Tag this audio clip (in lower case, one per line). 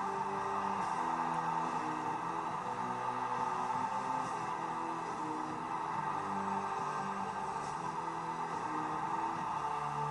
music